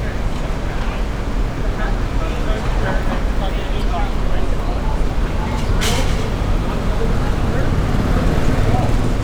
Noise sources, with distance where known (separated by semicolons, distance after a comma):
medium-sounding engine; person or small group talking, near